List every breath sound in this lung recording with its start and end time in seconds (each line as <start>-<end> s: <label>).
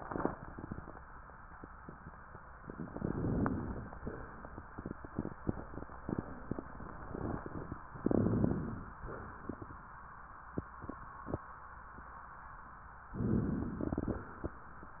2.88-3.93 s: inhalation
2.88-3.93 s: crackles
3.98-4.84 s: exhalation
7.99-8.98 s: inhalation
7.99-8.98 s: crackles
9.05-9.91 s: exhalation
13.15-14.29 s: inhalation
13.15-14.29 s: crackles